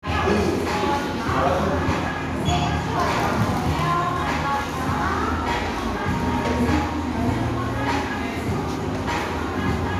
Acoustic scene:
crowded indoor space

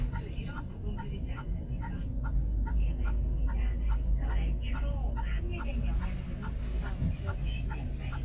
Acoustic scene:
car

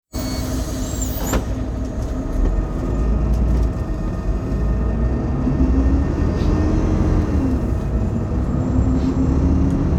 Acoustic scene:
bus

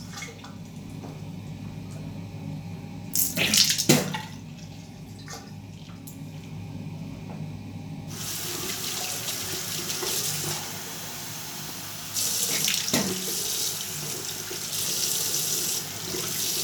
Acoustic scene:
restroom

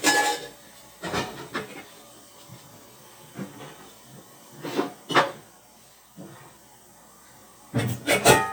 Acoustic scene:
kitchen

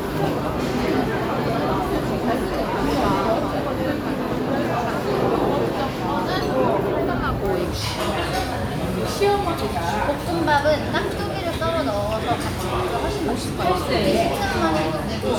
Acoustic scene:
restaurant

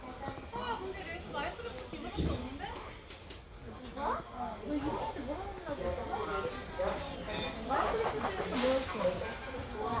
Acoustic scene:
crowded indoor space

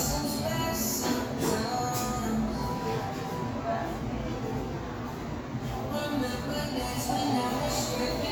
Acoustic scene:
cafe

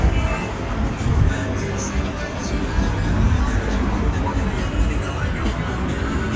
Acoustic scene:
street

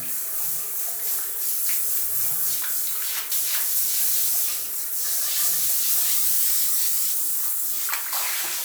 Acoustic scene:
restroom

